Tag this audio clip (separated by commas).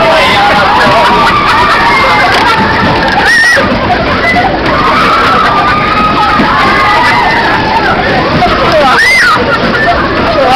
Speech